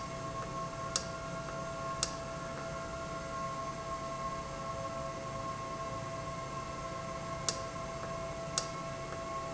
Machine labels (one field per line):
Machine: valve